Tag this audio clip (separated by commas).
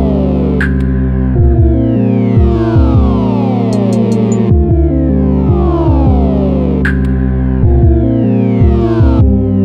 Music